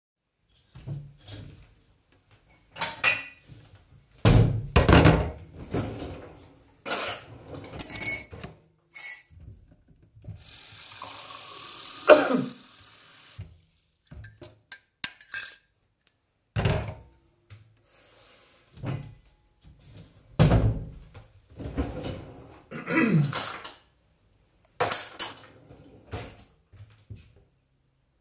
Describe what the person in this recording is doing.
A kitchen cupboard opens, a mug is taken out, and the cupboard is closed. The kitchen drawer is opened and a spoon is taken out and placed in the mug. The tap is turned on and water is run into the mug while the person coughs. The tap is turned off and the mug is set down, the spoon rattling inside. They search for something, open the kitchen cupboard, then close it again. They open the kitchen drawer once more, clear their throat, rummage through the cutlery, take something out, then put it back, close the drawer, and shuffle away.